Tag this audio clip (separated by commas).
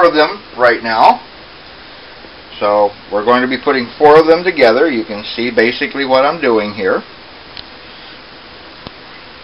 Speech